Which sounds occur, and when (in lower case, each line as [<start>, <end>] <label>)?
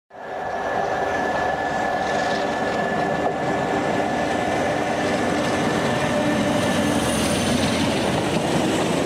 [0.05, 9.05] train wagon